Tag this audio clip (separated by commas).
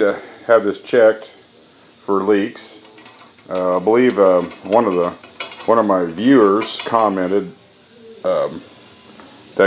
Speech